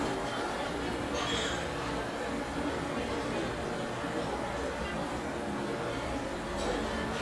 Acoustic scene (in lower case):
restaurant